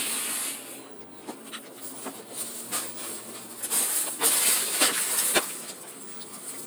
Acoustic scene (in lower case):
bus